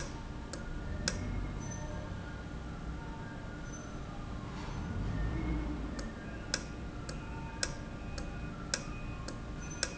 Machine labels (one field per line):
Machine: valve